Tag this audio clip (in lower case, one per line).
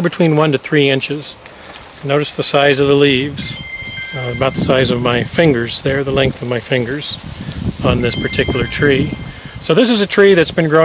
speech
rustling leaves